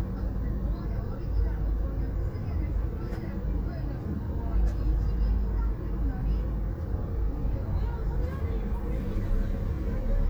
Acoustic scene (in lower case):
car